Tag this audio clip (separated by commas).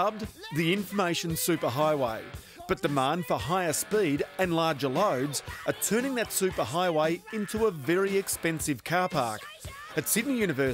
Speech, Music